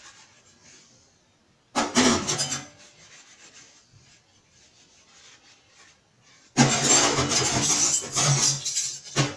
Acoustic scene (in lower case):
kitchen